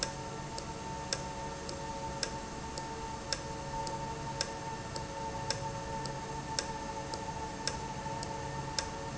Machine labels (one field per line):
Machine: valve